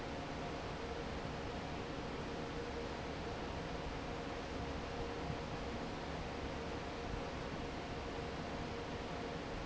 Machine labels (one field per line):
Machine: fan